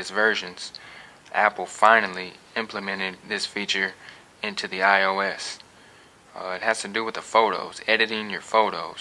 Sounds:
speech

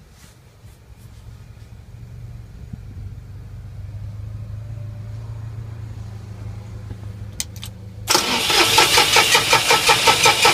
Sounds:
outside, urban or man-made

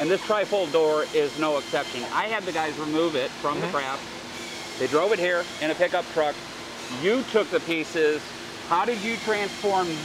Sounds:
speech

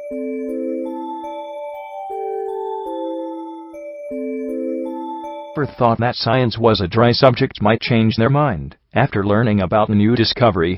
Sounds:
glockenspiel, music, speech

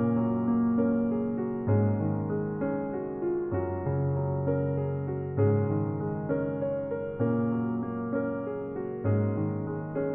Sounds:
music

